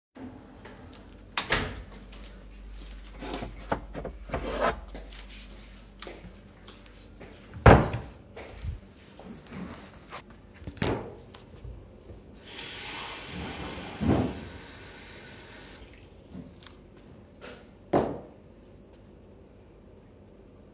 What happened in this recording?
Kitchen door closes in background. I take a mug out of the kitchen cabinet and close it. Then I walk over to the sink and fill the mug with water. Finally, I place the mug on the counter. Footsteps audible in background.